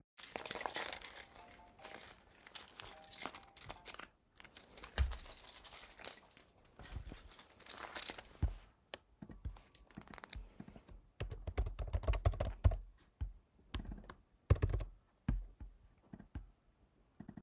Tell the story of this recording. My phone started ringing while my keys were jingling in my hand as I searched for the phone. After stopping the alarm, I continued typing on my laptop.